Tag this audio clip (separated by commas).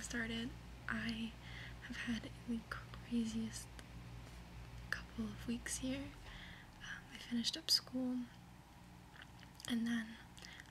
Speech